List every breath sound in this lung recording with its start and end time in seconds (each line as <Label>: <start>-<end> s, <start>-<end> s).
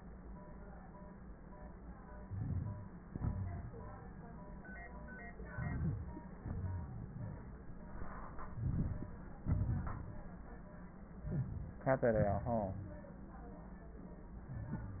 Inhalation: 2.19-2.90 s, 5.51-6.17 s, 8.50-9.16 s
Exhalation: 3.06-3.72 s, 6.37-6.98 s, 9.43-10.09 s
Wheeze: 11.25-11.90 s
Crackles: 2.19-2.90 s, 5.51-6.17 s, 8.50-9.16 s, 9.43-10.09 s